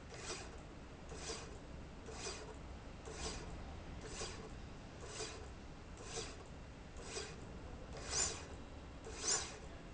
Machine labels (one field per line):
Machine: slide rail